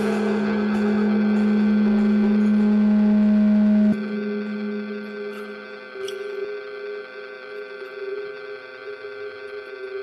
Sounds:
Music, inside a large room or hall

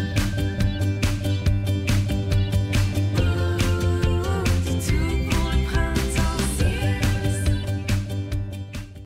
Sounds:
Music

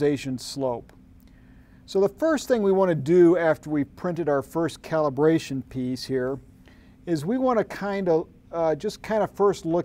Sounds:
Speech

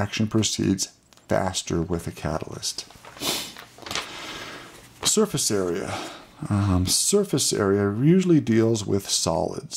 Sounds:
Speech

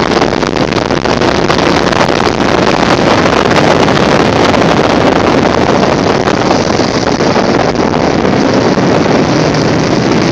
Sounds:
Gurgling

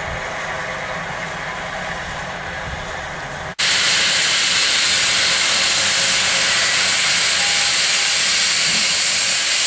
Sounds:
Hiss, Steam

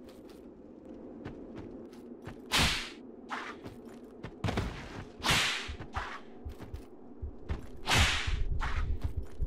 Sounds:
Whip

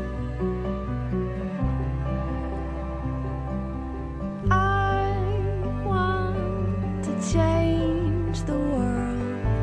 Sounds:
Music

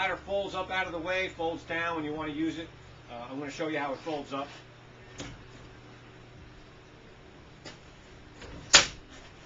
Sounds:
Speech

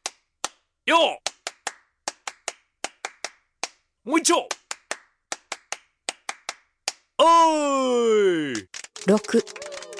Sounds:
Speech

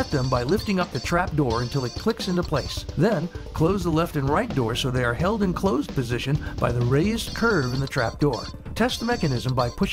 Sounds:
Music, Speech

